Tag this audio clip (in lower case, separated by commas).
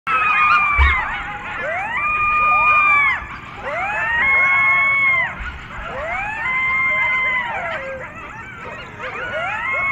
coyote howling